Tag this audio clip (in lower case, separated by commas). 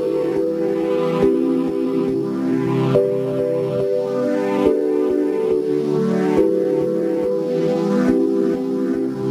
organ, electronic organ